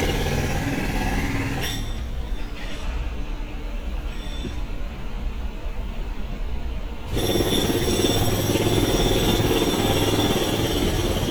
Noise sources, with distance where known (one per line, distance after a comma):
jackhammer, near